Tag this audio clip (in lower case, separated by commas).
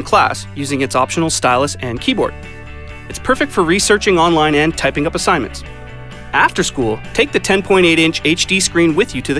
music, speech